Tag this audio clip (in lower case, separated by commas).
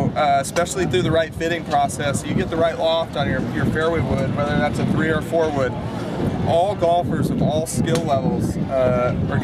speech